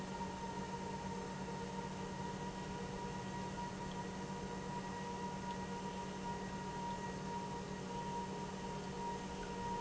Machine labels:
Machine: pump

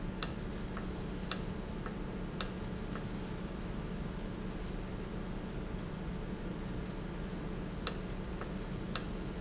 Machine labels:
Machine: valve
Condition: normal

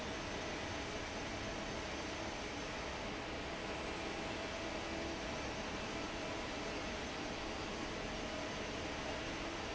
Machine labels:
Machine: fan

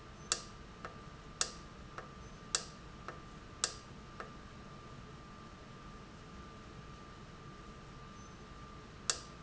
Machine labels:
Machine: valve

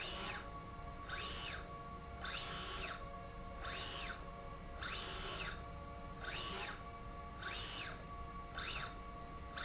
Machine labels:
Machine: slide rail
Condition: normal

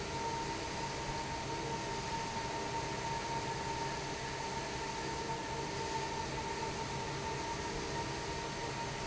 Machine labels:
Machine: fan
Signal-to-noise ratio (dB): -6 dB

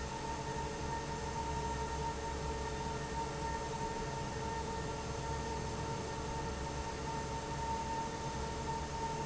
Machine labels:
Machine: fan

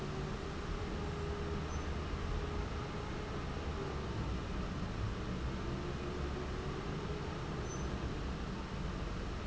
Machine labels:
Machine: fan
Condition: abnormal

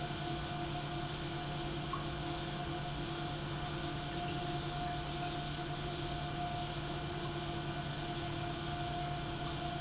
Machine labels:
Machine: pump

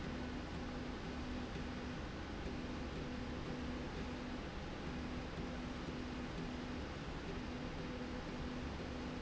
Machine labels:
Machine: slide rail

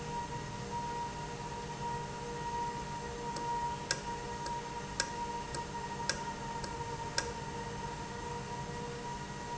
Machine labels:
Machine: valve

